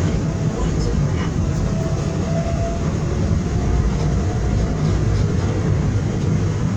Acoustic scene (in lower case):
subway train